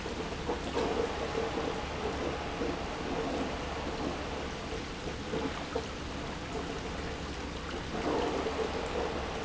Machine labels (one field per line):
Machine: pump